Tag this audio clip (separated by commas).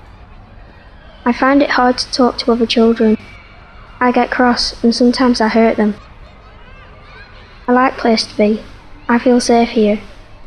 Speech